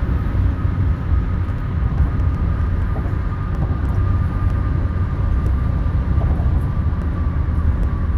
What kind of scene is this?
car